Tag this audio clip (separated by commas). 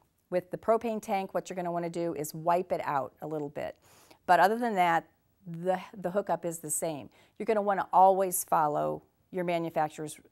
Speech